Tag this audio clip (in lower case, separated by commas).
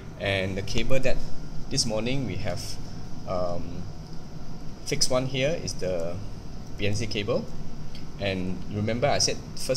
speech